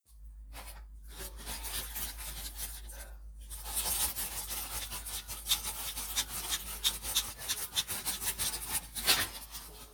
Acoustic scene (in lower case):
kitchen